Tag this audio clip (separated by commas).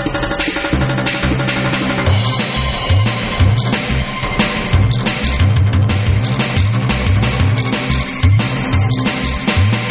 Music